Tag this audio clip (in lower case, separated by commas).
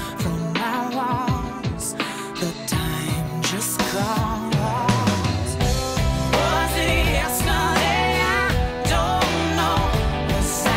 ska, independent music, music